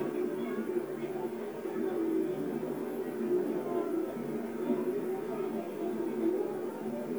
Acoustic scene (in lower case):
park